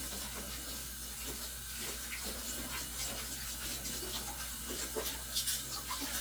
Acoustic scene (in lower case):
kitchen